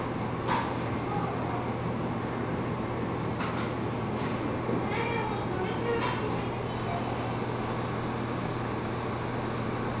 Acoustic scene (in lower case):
cafe